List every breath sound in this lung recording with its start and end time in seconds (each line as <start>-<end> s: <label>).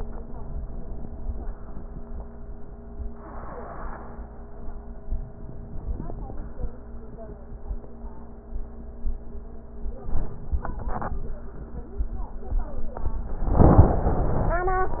5.06-6.39 s: inhalation
6.39-6.86 s: exhalation
9.83-11.21 s: inhalation
11.21-11.92 s: exhalation